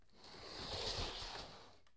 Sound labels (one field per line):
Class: furniture moving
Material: wooden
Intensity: low